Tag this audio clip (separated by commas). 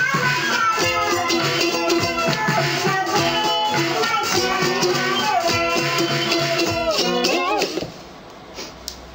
Synthetic singing, Music